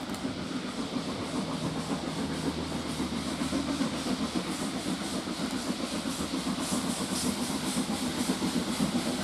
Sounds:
steam
hiss

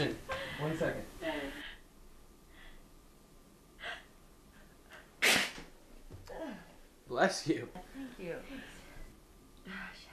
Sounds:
speech
people sneezing
sneeze

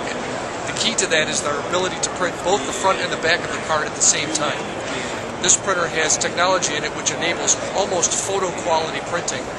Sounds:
speech

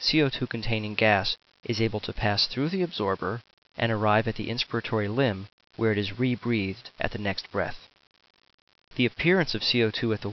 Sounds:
speech

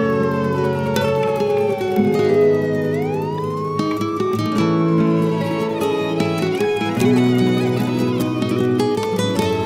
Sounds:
soundtrack music
music

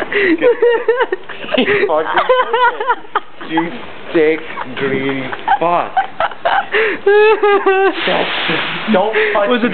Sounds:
speech

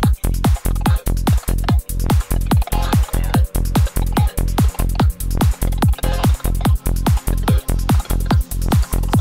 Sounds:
music

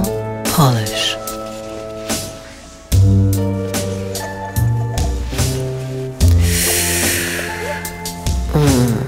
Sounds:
speech
music

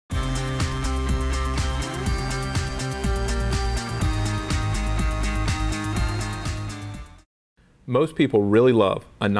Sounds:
speech
music

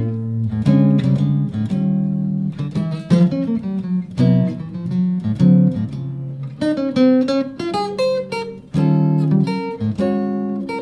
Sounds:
guitar
musical instrument
music
strum
electric guitar
plucked string instrument

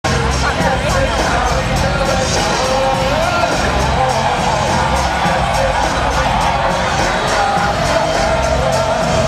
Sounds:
singing
music
speech

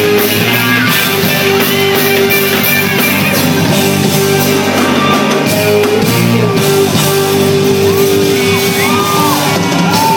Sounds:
singing

